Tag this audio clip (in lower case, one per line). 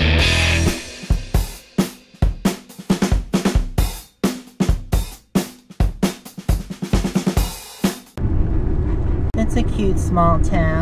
vehicle